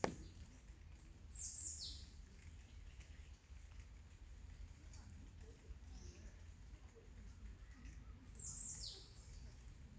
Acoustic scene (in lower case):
park